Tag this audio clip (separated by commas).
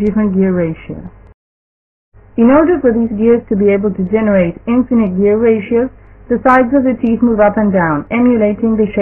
Speech